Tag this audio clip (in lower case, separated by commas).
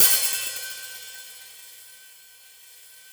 percussion, cymbal, hi-hat, musical instrument, music